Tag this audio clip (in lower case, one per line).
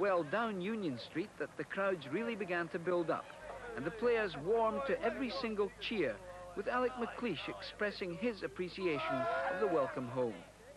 speech